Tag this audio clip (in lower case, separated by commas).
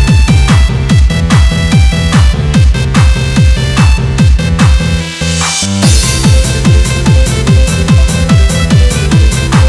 techno, music, electronic music